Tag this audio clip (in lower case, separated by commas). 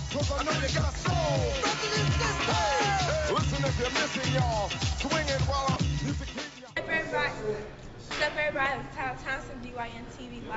speech, music